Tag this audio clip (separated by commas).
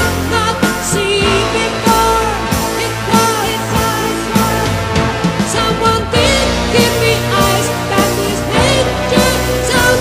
Music